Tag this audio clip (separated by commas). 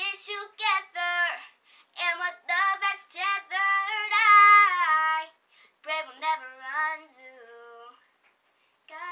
Child singing